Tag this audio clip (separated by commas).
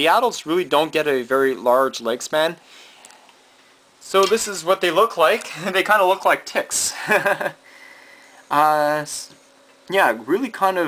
Speech, inside a small room